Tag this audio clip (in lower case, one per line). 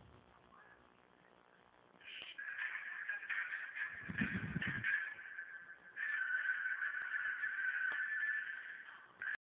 music
television